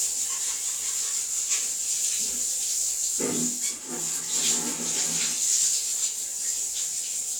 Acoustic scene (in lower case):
restroom